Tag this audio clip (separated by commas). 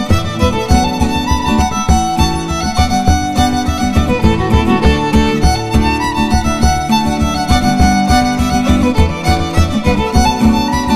Musical instrument, Music, fiddle